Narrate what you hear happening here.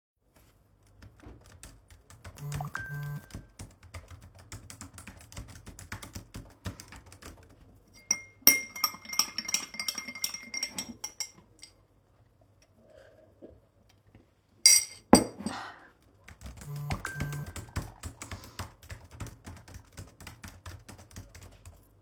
I was typing, took a sip of my drink. While doing that, I was getting notifications.